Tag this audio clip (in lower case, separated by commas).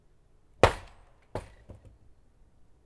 slam, home sounds, door